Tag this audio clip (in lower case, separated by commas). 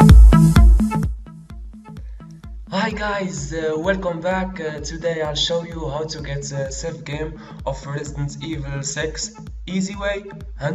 music, speech